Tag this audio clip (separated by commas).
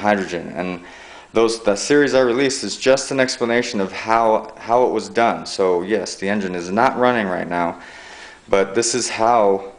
Speech